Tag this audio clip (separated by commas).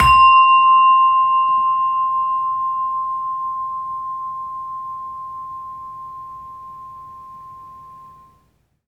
Bell